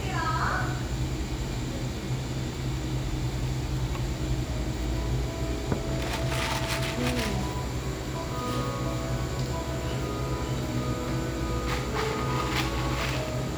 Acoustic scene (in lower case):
cafe